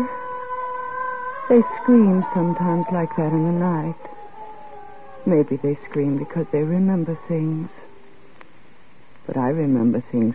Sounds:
speech, radio

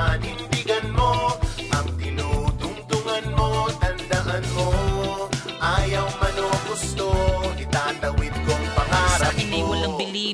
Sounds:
music, background music

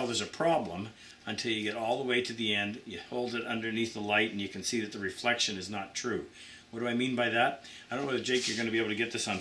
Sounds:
speech

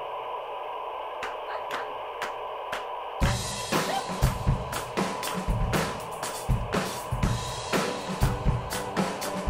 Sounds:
rimshot

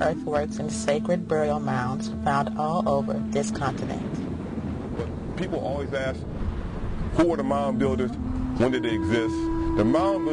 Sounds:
outside, rural or natural, speech, music

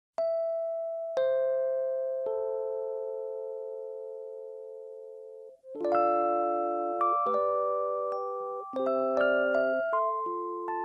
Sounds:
music, outside, rural or natural, glockenspiel

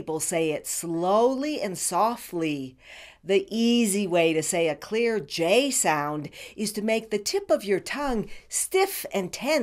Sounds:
monologue, speech, female speech

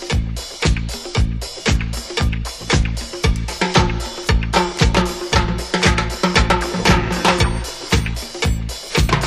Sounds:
disco, music

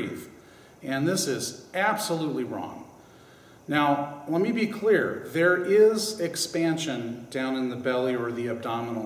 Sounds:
speech

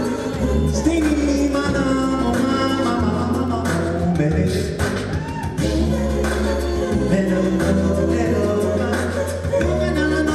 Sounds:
music, singing

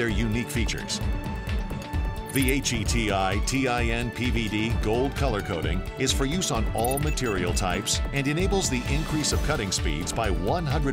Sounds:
speech, music

